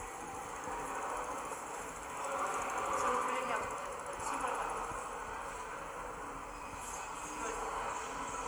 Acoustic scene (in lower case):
subway station